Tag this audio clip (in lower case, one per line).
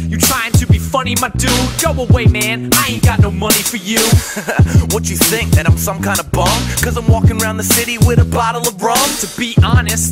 music
hip hop music